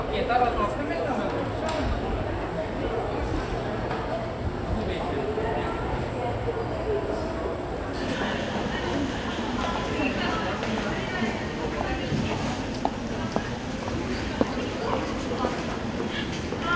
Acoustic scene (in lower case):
crowded indoor space